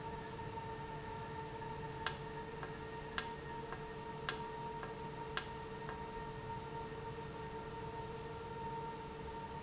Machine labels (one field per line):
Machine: valve